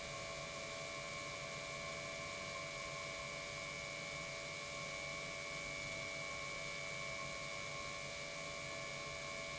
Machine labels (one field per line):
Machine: pump